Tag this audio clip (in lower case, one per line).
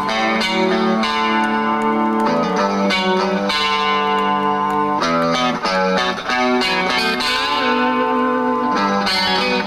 electric guitar
music